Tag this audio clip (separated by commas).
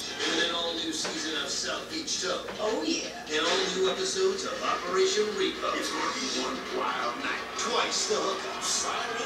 Speech